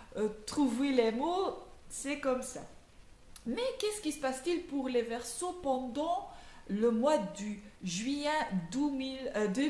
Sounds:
speech

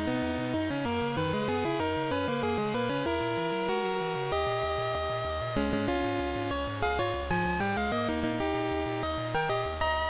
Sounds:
music, video game music

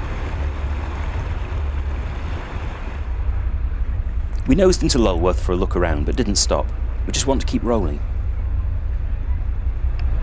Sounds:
water vehicle, vehicle, ocean, speech

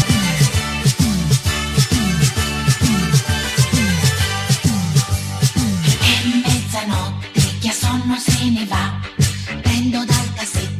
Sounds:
singing, music

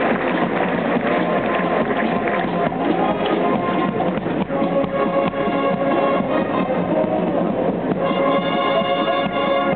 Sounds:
bicycle, music

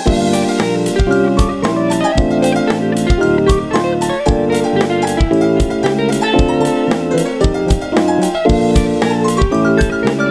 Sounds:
plucked string instrument, music, background music, guitar, musical instrument

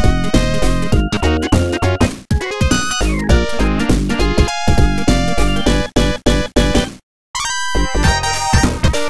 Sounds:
music, theme music

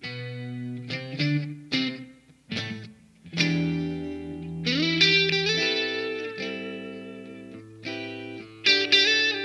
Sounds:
electric guitar, strum, plucked string instrument, music, guitar, musical instrument

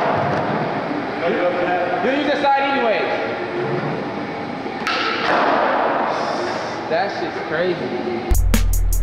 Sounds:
skateboard

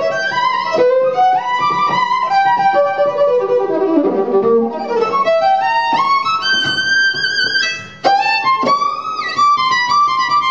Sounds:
musical instrument, music, fiddle

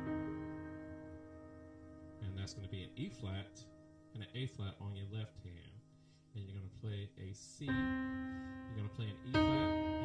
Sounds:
keyboard (musical), piano

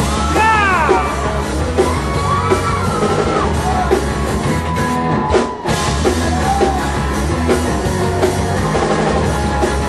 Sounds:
music, speech

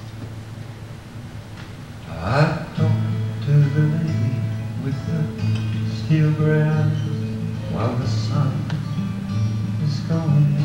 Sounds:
music

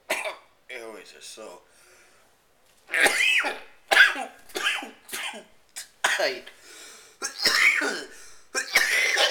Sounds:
breathing, cough, speech

